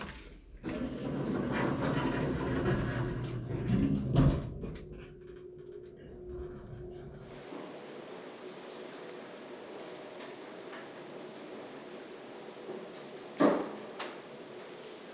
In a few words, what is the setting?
elevator